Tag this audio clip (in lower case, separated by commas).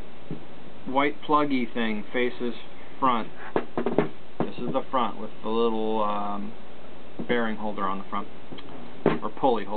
speech